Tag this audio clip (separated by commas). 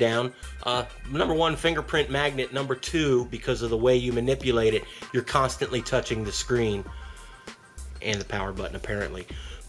Speech, Music